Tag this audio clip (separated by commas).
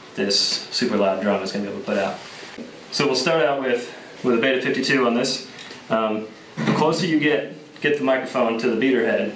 Speech